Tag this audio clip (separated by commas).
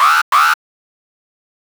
Alarm